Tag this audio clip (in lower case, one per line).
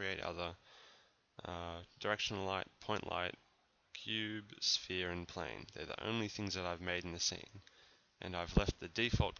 speech